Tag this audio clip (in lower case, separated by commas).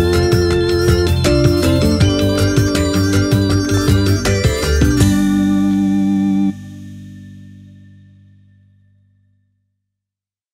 music